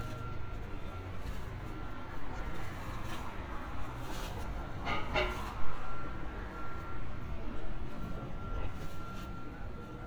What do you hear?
non-machinery impact